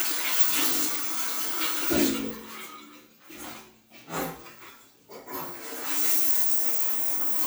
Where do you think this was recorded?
in a restroom